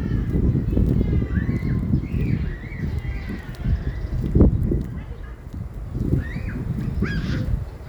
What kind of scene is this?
residential area